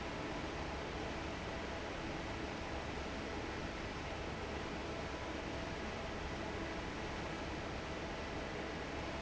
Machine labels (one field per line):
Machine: fan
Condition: normal